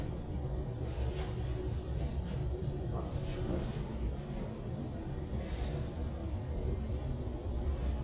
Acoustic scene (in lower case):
elevator